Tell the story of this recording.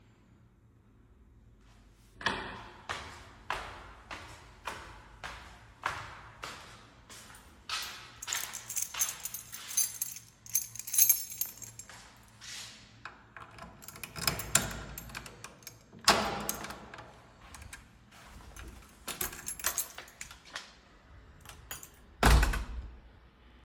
I walked down the hallway towards the front door carrying my phone in my hand. While walking I jingled my keychain to find the right key. Then I unlocked the door, opened it, went inside, and closed it behind me.